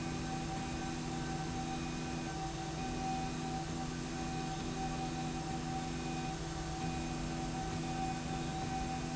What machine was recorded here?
slide rail